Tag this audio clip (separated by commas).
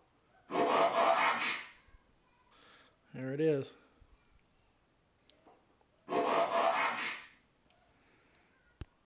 Speech